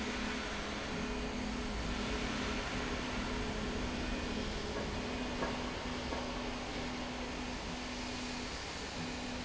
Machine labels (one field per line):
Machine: slide rail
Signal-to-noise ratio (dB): -6 dB